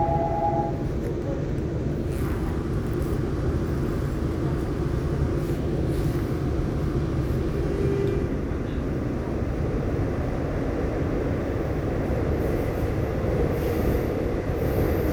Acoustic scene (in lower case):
subway train